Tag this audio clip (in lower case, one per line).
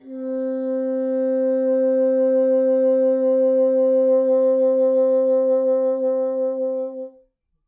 wind instrument
music
musical instrument